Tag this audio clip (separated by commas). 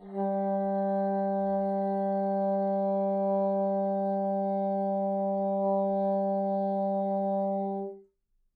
Music, Musical instrument, Wind instrument